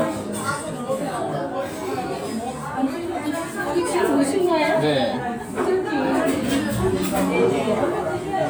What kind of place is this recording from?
restaurant